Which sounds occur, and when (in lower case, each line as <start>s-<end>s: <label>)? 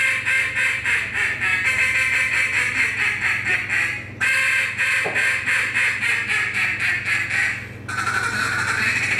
0.0s-4.0s: quack
0.0s-9.1s: mechanisms
4.2s-7.7s: quack
5.0s-5.2s: generic impact sounds
7.9s-9.1s: quack